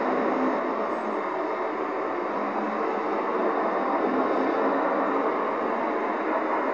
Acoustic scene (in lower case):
street